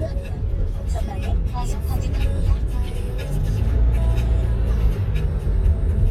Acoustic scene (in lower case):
car